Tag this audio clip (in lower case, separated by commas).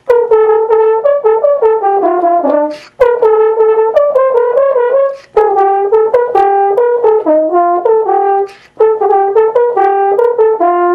brass instrument, french horn, musical instrument, music